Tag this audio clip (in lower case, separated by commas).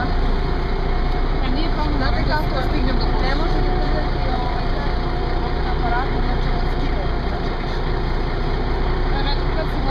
speech